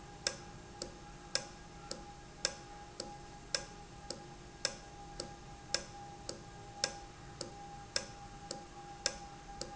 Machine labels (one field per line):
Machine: valve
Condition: normal